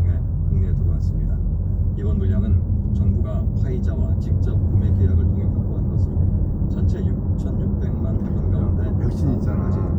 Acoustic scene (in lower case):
car